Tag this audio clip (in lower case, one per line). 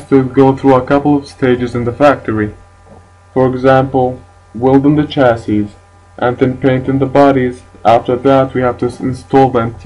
speech